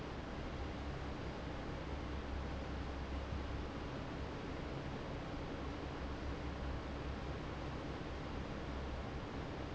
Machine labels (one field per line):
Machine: fan